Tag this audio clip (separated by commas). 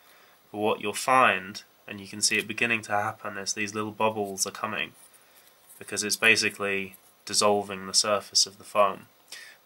Speech